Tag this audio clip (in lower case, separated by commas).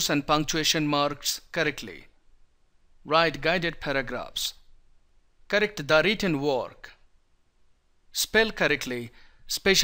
speech